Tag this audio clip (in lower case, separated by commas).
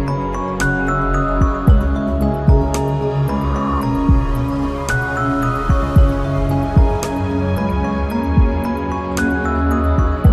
music, background music